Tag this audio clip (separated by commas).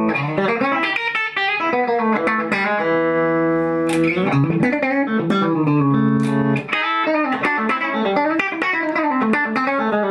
Music